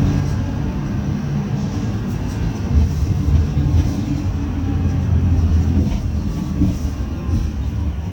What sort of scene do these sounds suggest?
bus